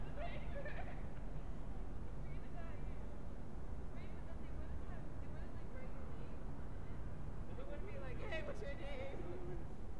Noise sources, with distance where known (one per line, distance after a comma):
person or small group talking, far